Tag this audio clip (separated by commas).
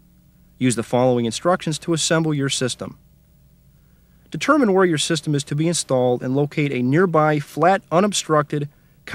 Speech